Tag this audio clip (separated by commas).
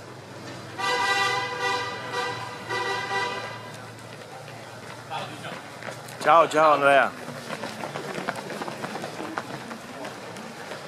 outside, urban or man-made, Run, Speech